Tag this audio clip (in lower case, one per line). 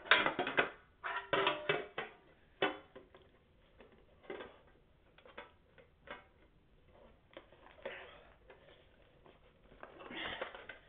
inside a small room